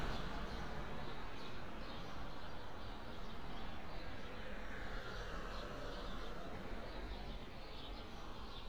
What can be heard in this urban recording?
background noise